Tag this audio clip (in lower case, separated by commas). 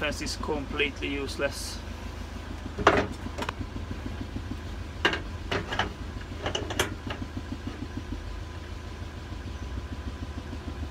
speech